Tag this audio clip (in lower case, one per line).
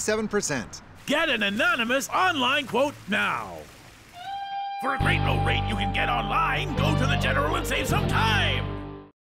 music
speech